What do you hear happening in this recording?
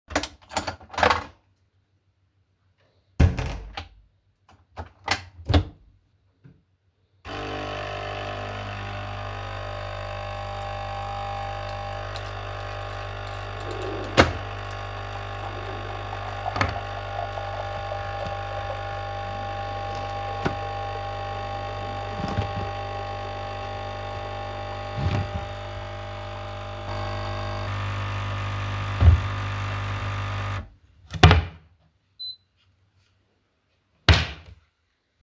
I closed the door and made a coffee. After that i was looking for cooking utensils in the drawers while the coffee machine finishes.